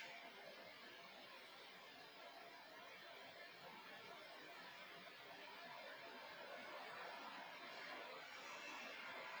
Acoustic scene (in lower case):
park